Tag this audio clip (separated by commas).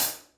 Music, Percussion, Cymbal, Hi-hat, Musical instrument